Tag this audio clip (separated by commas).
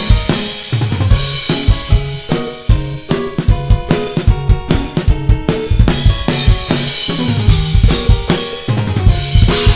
Disco, Music, Drum, Musical instrument, Dance music, Drum kit, Pop music, Bass drum